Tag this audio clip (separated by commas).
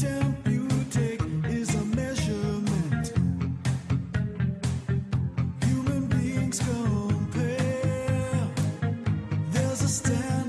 Music